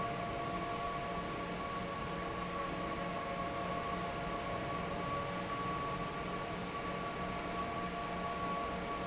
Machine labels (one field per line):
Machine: fan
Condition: normal